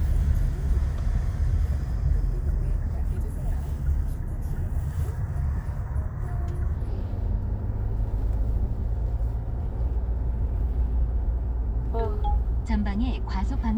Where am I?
in a car